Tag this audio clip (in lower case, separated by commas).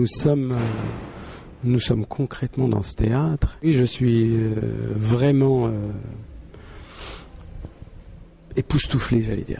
speech